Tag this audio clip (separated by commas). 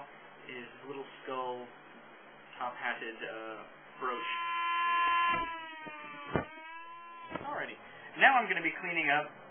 Speech, Tools